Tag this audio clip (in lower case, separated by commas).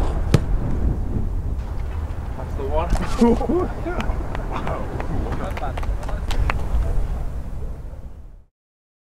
speech